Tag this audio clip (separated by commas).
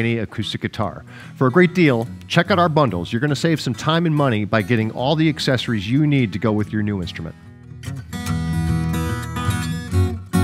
Speech, Music, Guitar, Musical instrument, Plucked string instrument, Acoustic guitar